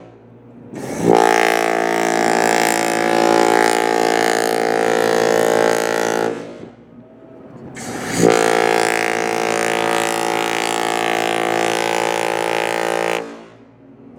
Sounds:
Vehicle, Boat

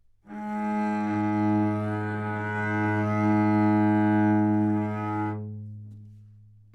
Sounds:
Music, Bowed string instrument, Musical instrument

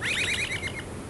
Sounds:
Bird, Wild animals, Animal

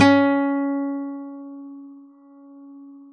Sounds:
Guitar, Music, Acoustic guitar, Plucked string instrument, Musical instrument

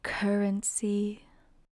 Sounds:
Female speech, Speech, Human voice

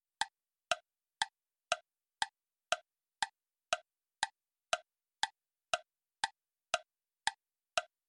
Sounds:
Clock, Tick-tock, Mechanisms

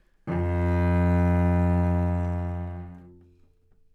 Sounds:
Music, Musical instrument, Bowed string instrument

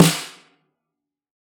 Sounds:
Percussion, Drum, Music, Snare drum, Musical instrument

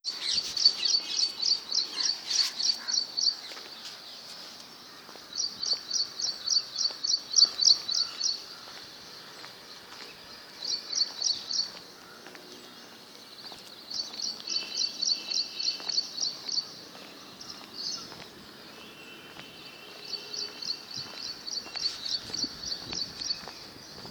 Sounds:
Bird vocalization, Bird, Animal, Wild animals

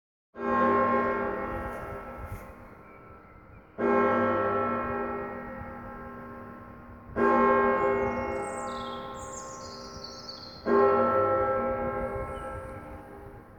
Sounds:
Church bell, Bell

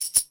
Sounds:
Tambourine, Musical instrument, Percussion, Music

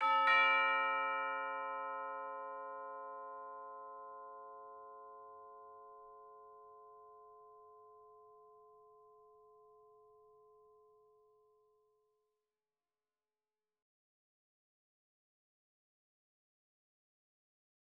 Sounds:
Doorbell, Domestic sounds, Door, Alarm

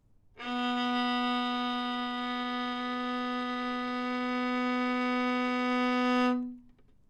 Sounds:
Music, Bowed string instrument, Musical instrument

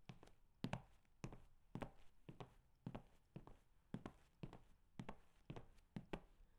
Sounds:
footsteps

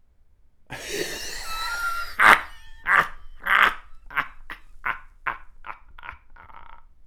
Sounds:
Laughter, Human voice

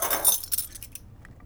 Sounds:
Keys jangling, Domestic sounds

